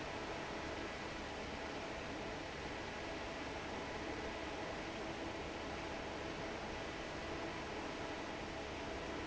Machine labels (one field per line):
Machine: fan